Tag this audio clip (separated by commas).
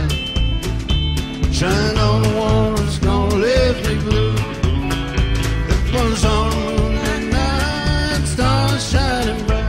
Music